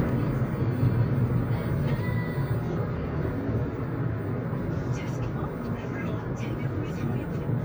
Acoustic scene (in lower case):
car